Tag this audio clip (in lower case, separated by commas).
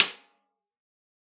percussion, music, musical instrument, snare drum, drum